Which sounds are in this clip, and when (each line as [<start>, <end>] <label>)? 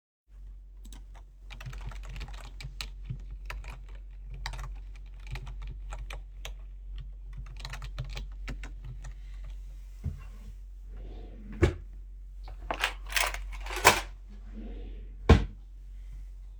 [0.80, 10.71] keyboard typing
[10.73, 11.94] wardrobe or drawer
[14.40, 15.62] wardrobe or drawer